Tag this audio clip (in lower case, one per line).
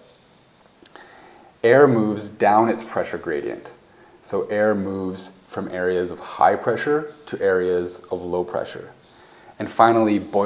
speech